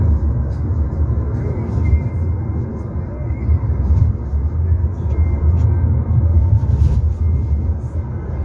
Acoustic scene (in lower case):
car